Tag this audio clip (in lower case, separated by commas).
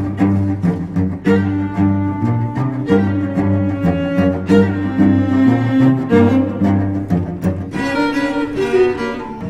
string section, music, cello, bowed string instrument, musical instrument, classical music